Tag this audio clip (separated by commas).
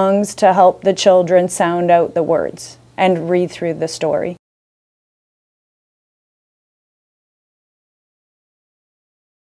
Speech